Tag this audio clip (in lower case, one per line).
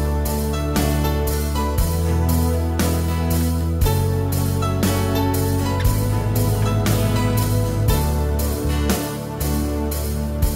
music